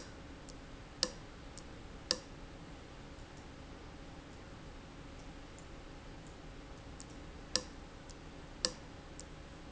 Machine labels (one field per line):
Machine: valve